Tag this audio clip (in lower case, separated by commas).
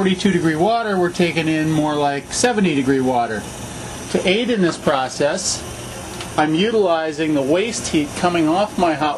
speech